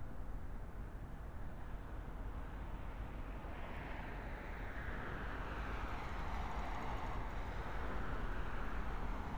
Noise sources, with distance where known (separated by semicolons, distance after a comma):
background noise